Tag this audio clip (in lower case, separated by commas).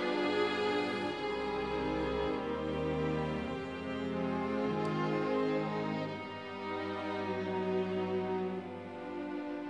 music